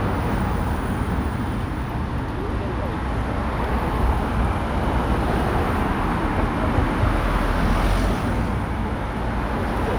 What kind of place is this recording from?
street